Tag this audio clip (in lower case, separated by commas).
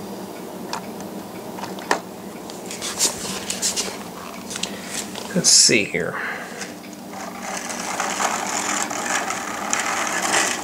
speech, inside a small room